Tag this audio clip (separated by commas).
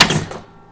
Mechanisms